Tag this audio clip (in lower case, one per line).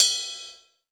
cymbal
musical instrument
crash cymbal
percussion
music